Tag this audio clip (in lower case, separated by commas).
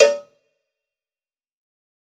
bell, cowbell